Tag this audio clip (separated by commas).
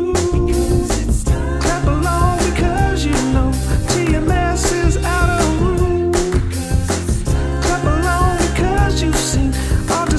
Music, Dance music, Ska